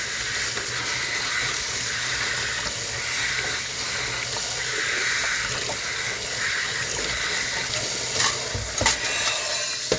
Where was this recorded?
in a kitchen